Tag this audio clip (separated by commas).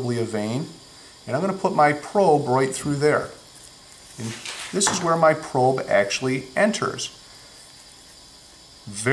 Speech